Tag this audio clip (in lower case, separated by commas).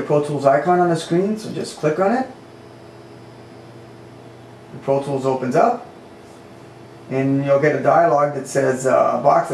speech